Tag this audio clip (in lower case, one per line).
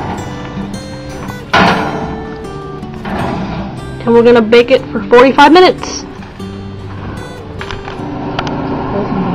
music
speech
inside a small room